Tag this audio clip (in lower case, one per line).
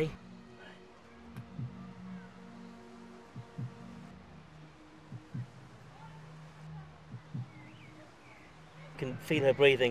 speech